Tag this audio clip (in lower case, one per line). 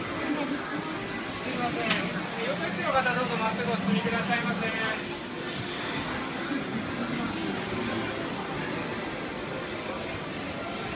speech